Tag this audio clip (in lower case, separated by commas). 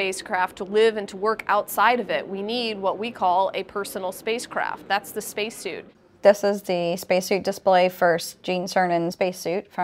speech